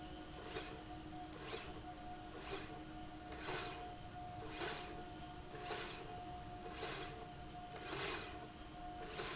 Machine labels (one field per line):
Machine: slide rail